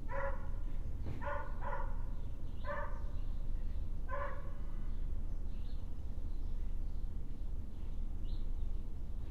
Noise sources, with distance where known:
dog barking or whining, near

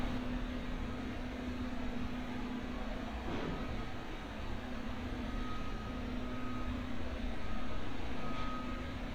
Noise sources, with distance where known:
reverse beeper

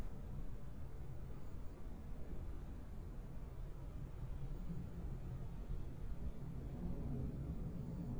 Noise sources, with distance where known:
background noise

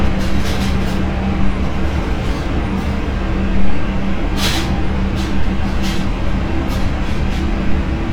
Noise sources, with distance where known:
large-sounding engine, near
non-machinery impact, near

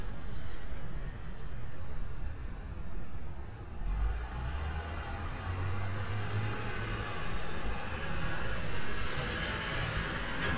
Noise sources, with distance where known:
engine of unclear size, near

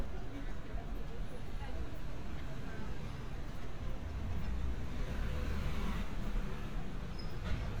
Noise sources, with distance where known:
engine of unclear size

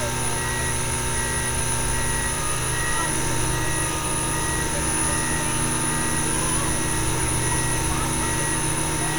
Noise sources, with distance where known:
unidentified powered saw, near
reverse beeper, near
unidentified human voice

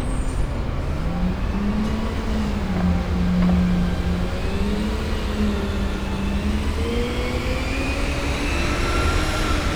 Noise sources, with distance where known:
large-sounding engine, near

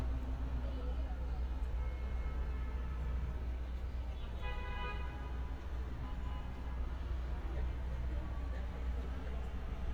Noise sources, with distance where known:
car horn, far
person or small group talking, far

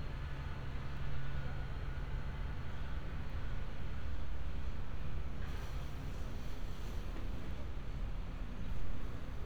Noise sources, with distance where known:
background noise

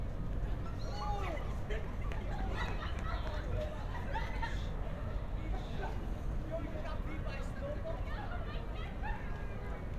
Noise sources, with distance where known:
person or small group talking, near

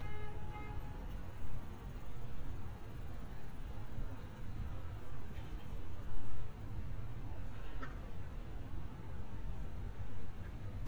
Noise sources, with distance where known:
car horn, far

